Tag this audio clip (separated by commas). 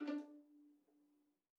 Bowed string instrument, Musical instrument, Music